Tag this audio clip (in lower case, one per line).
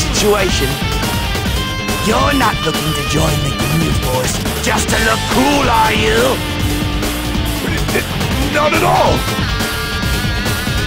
speech
music